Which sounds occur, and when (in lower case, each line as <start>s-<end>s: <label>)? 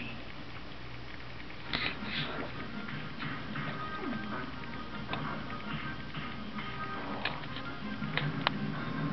0.0s-9.1s: mechanisms
1.6s-9.1s: music
1.7s-2.3s: generic impact sounds
3.1s-3.8s: generic impact sounds
4.0s-4.3s: animal
5.1s-5.2s: generic impact sounds
5.4s-6.0s: generic impact sounds
6.1s-6.4s: generic impact sounds
6.5s-6.7s: generic impact sounds
7.2s-7.7s: generic impact sounds
8.1s-8.2s: generic impact sounds
8.4s-8.5s: generic impact sounds